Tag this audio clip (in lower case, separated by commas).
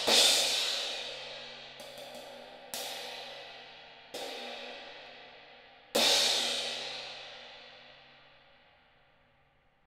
musical instrument, music, hi-hat